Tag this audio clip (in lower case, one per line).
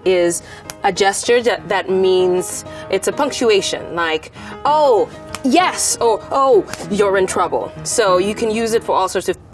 people finger snapping